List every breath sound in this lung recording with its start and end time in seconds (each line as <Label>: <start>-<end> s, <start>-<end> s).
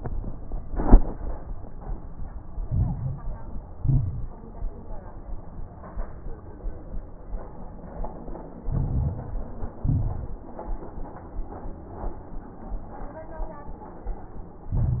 Inhalation: 2.68-3.55 s, 8.61-9.54 s, 14.71-15.00 s
Exhalation: 3.78-4.35 s, 9.82-10.39 s
Crackles: 2.68-3.55 s, 3.78-4.35 s, 8.61-9.54 s, 9.82-10.39 s, 14.71-15.00 s